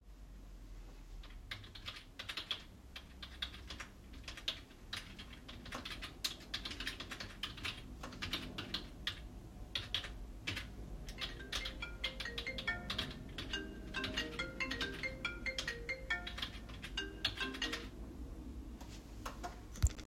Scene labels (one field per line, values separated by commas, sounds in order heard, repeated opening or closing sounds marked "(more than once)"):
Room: office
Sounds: keyboard typing, phone ringing